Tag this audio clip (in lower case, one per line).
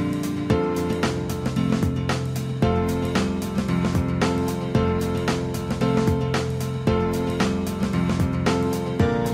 music